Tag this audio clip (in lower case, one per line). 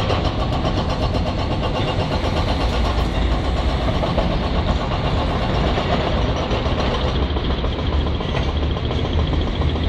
tractor digging